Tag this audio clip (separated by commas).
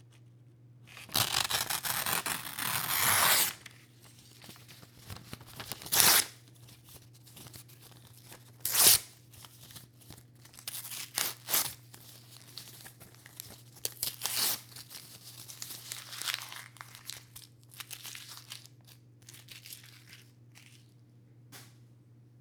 Tearing